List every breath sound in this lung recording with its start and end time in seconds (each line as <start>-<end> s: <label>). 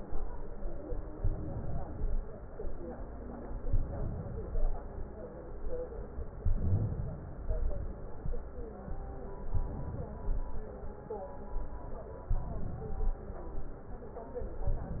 1.12-2.16 s: inhalation
3.67-4.71 s: inhalation
6.42-7.46 s: inhalation
9.50-10.54 s: inhalation
12.33-13.30 s: inhalation
14.69-15.00 s: inhalation